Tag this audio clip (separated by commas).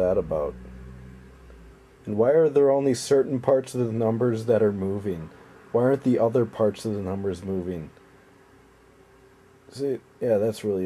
Speech